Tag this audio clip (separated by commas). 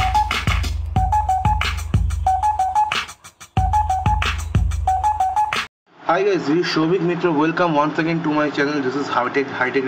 inside a small room, Music, Speech